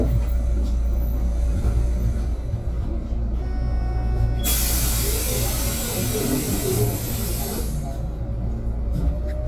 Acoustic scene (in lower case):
bus